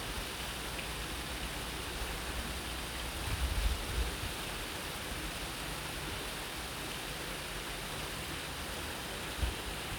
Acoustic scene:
park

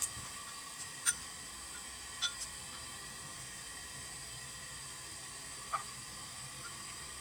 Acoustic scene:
kitchen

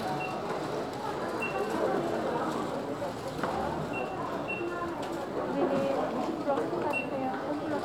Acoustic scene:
crowded indoor space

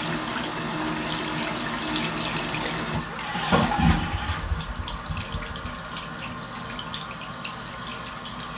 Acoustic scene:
restroom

